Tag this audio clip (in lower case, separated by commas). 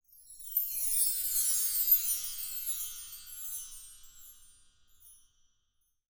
chime, bell